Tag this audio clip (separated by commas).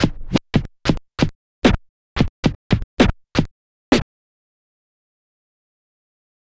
Musical instrument, Scratching (performance technique), Music